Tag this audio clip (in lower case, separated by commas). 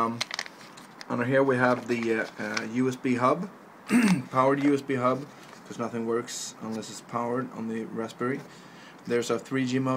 speech